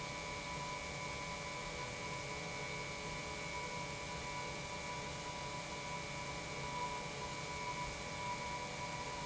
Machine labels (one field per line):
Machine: pump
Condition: normal